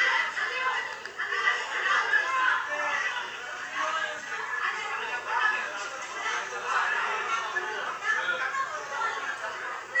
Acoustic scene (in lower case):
crowded indoor space